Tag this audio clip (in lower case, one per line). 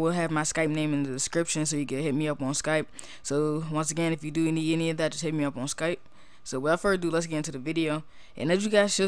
speech